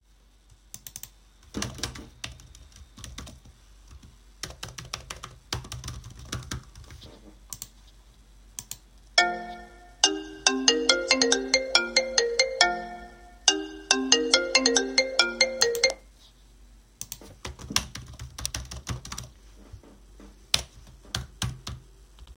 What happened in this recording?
I was typing on the keyboard while the phone started ringing.